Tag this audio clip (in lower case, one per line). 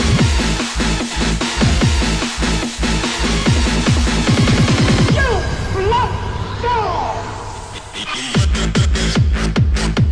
people shuffling